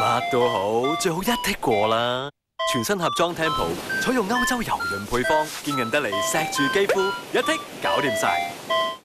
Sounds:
Speech, Music

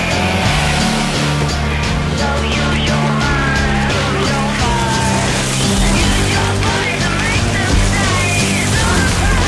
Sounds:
Music

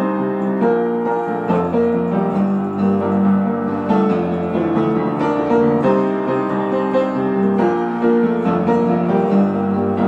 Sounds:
Music

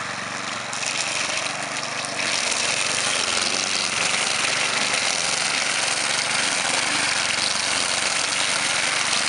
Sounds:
lawn mowing, Vehicle, Lawn mower

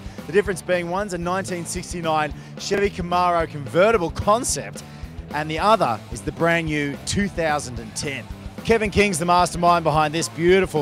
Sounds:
Music, Speech

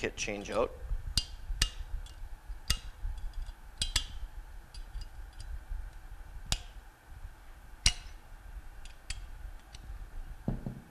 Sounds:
Speech

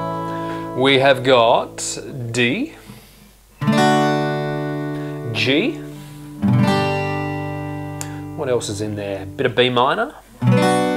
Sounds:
Acoustic guitar, Speech, Guitar, Music, Strum

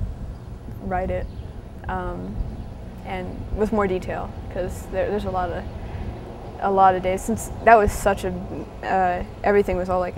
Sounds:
Speech

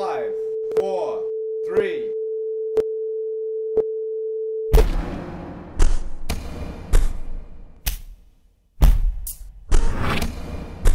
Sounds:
Music, Speech

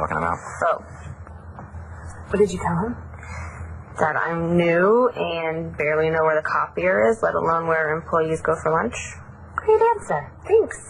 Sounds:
Speech

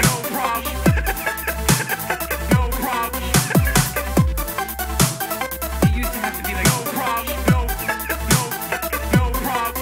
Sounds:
Music, Electronic music, Dubstep

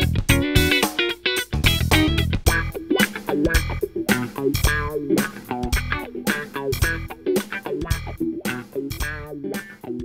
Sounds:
Music, Electric guitar, Plucked string instrument, Guitar, Musical instrument

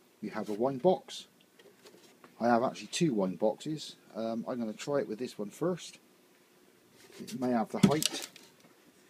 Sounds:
Speech

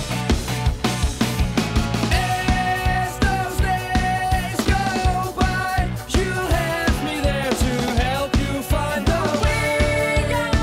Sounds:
Music

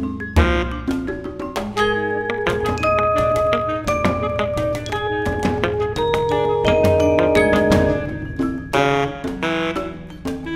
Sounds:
Music, xylophone, Drum, Jazz, Musical instrument, Percussion, Saxophone

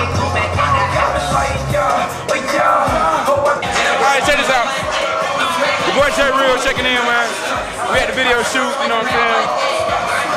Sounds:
Music, Speech

